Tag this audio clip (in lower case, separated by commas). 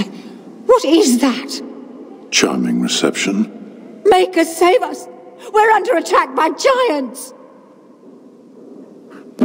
speech